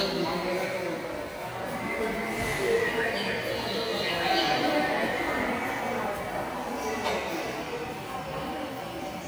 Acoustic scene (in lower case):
subway station